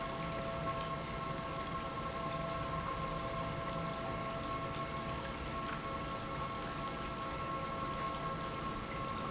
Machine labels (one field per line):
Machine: pump